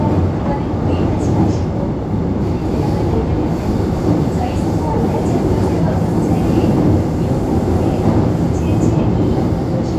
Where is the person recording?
on a subway train